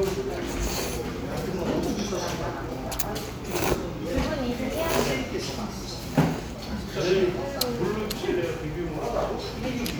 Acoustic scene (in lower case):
restaurant